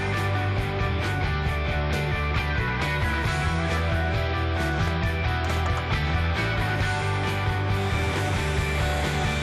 Music playing as power tools rev